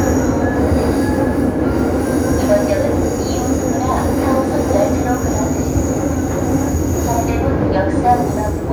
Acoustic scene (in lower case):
subway train